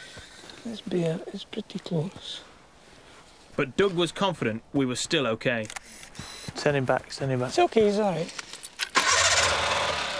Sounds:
Speech

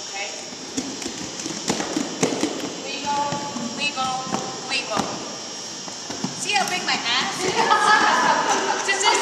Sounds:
Speech

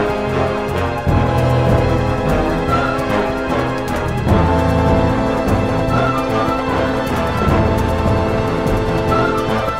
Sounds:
Music, Soundtrack music, Background music, Exciting music

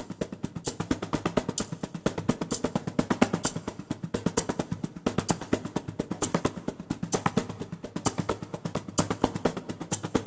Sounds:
Music, Sampler, Musical instrument

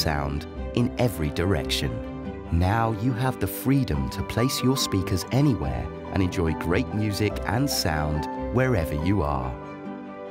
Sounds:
Speech, Music

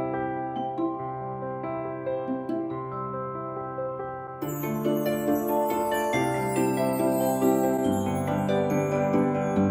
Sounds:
Music

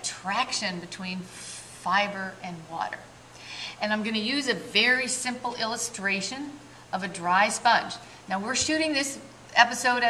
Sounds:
Speech

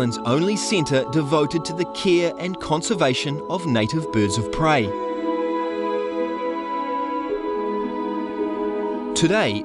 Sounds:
Speech, Music

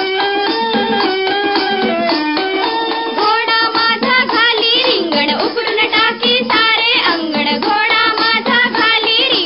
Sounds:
Music

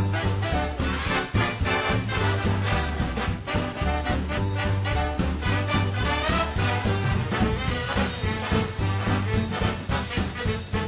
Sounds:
Rhythm and blues, Jazz, Music

